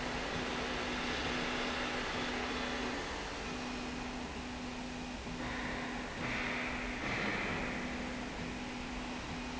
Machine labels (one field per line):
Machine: slide rail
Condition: normal